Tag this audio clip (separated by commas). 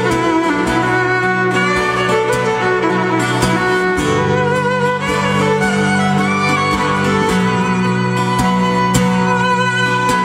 Music